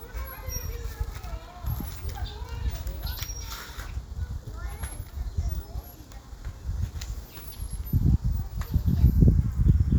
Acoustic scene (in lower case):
park